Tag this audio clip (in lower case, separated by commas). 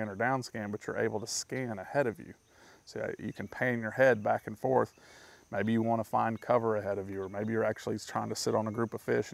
speech